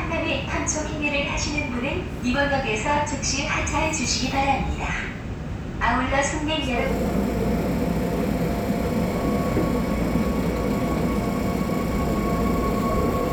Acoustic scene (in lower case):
subway train